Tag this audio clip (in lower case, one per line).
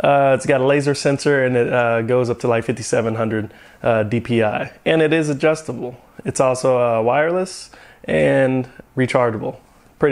speech